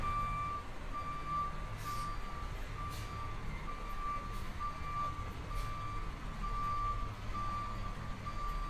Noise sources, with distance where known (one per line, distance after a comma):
large-sounding engine
reverse beeper, near